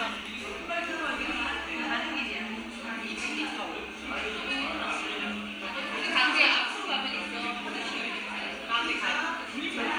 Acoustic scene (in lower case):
crowded indoor space